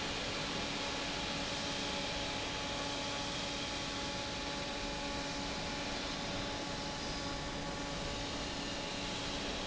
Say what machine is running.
fan